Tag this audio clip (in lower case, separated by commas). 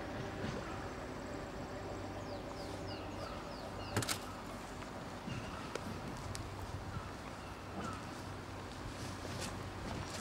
wind noise (microphone), wind